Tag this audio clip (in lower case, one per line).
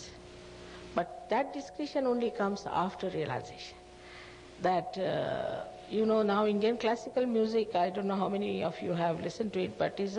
speech